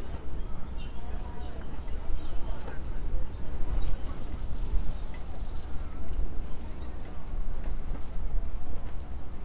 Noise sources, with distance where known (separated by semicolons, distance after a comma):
person or small group talking, far; unidentified human voice, far